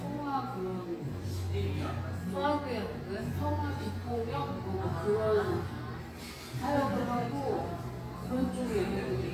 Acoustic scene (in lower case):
cafe